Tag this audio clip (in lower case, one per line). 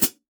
cymbal
hi-hat
music
percussion
musical instrument